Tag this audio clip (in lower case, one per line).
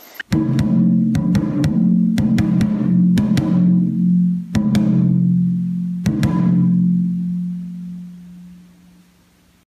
percussion
music